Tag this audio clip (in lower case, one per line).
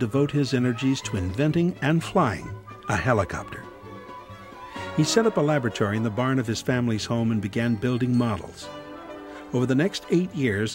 speech
music